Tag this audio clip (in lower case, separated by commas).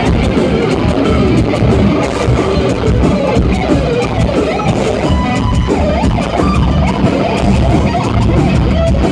music, blues